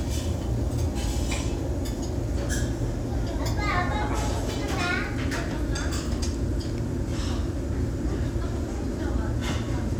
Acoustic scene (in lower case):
restaurant